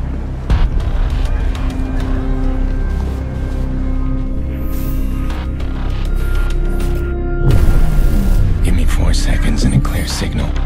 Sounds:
music, speech

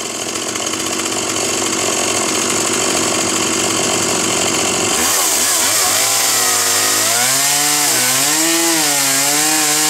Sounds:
chainsawing trees, chainsaw, tools

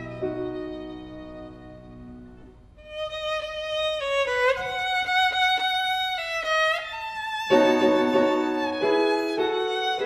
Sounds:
violin, fiddle, music, musical instrument

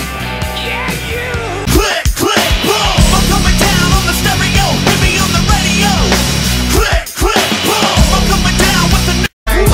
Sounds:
music

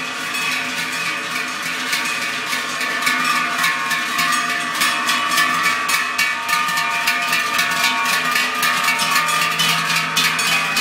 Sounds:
bovinae cowbell

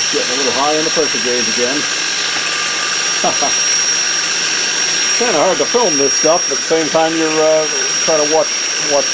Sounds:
speech, engine

